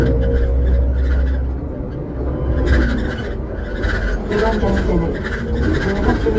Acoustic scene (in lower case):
bus